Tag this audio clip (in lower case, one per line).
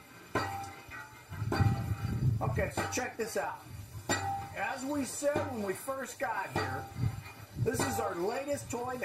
speech